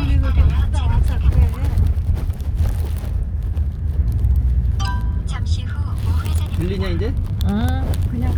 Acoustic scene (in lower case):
car